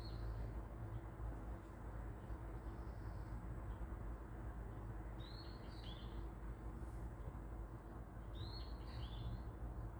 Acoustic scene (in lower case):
park